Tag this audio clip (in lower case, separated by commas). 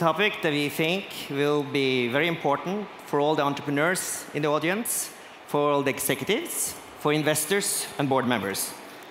speech